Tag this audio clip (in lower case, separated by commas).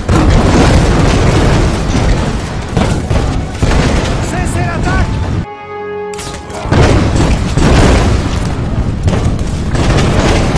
artillery fire, gunfire